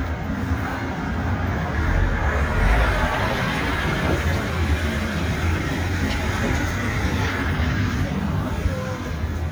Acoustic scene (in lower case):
residential area